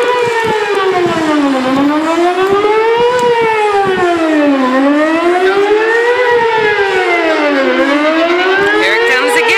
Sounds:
Civil defense siren, Siren

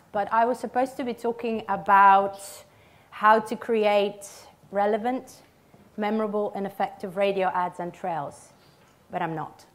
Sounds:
Speech

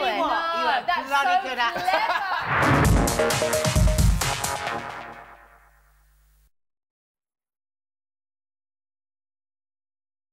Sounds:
Speech, Music

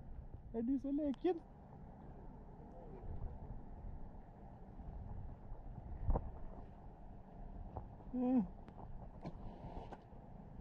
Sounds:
whale calling

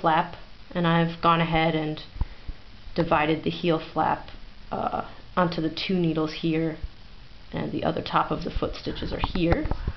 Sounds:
Speech

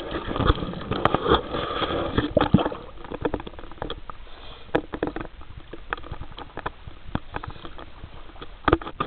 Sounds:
Vehicle

